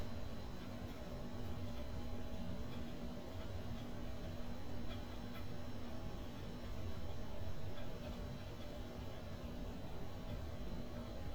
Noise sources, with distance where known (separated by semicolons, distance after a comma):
background noise